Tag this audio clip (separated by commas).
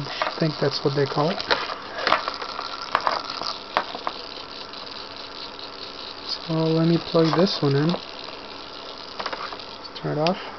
Speech